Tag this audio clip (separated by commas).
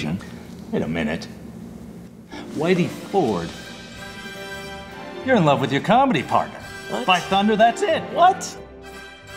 Music, Speech